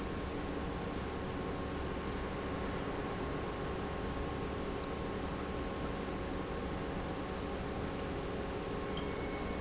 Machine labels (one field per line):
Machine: pump